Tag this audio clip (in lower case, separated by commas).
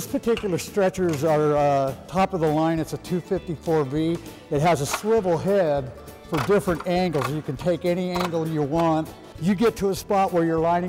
music, speech